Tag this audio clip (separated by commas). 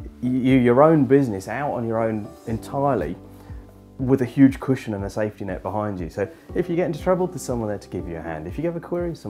Speech